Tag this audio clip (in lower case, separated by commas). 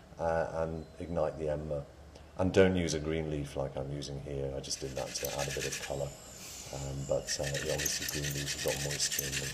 speech